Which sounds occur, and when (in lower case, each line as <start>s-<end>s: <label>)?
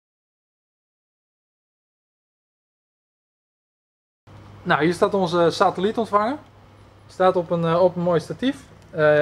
4.3s-9.2s: mechanisms
4.6s-6.4s: male speech
7.1s-8.6s: male speech
8.9s-9.2s: male speech